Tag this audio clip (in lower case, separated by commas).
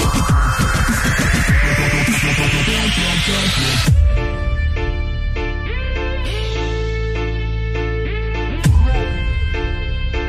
dubstep, music